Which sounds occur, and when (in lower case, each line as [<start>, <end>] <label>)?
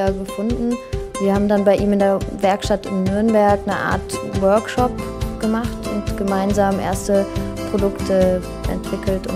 [0.00, 9.35] music
[0.03, 2.20] female speech
[2.33, 4.90] female speech
[5.16, 5.80] female speech
[6.28, 9.35] female speech